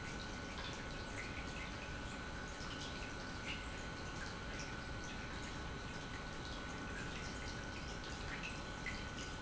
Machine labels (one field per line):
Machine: pump